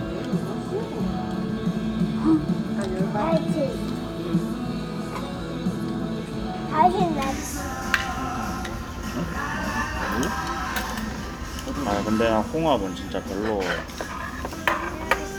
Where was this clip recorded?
in a restaurant